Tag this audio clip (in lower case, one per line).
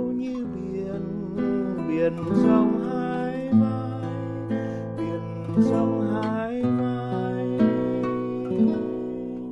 musical instrument
music
strum
acoustic guitar
guitar